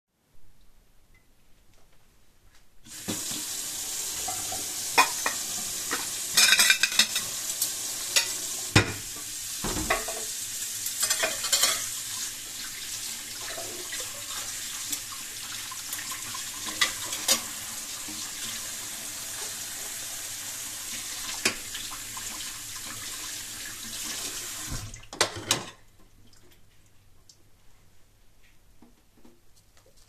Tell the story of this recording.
I opened the tap and took the dished and cleaned them, after I finished I turned it off and put the dishes